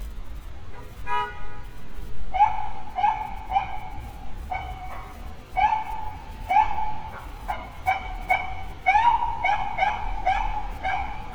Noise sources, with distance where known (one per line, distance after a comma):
unidentified alert signal